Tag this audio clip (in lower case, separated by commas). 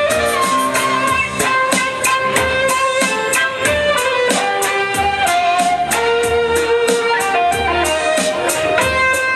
music, musical instrument, fiddle